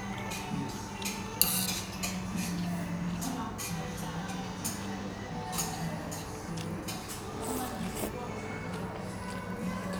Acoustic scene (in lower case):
restaurant